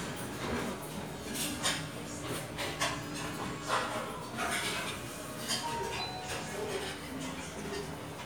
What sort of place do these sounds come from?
restaurant